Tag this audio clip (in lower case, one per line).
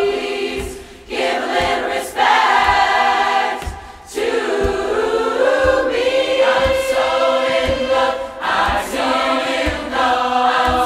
singing choir